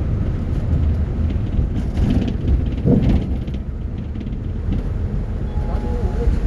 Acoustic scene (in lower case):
bus